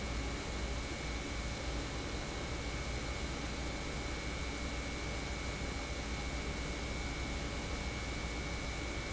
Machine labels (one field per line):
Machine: pump